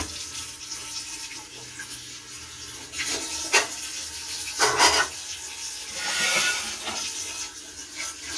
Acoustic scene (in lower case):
kitchen